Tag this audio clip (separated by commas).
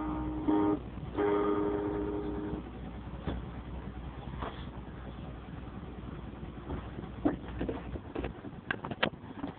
Musical instrument, Plucked string instrument, Guitar, Acoustic guitar, Strum, Music